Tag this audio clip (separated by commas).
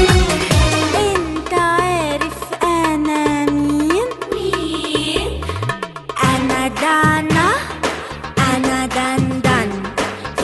Folk music, Singing, Music